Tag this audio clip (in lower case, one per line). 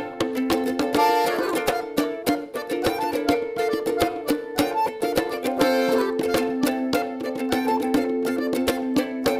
playing bongo